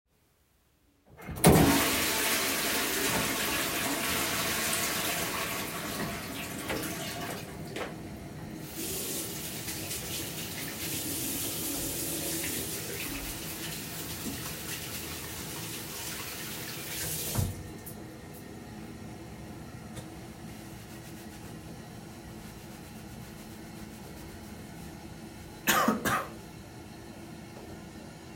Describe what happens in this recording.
I flushed the toilet and walked to the sink. I opened the tap and I cleaned my hands. With a towel I dried my hands. The toilet water tank was refilling the whole time.